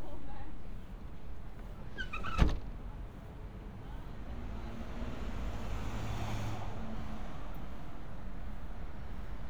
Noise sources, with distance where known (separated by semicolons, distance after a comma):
medium-sounding engine, near; non-machinery impact, near; person or small group talking, near